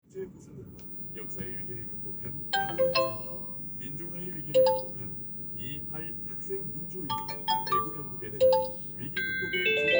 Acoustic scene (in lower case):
car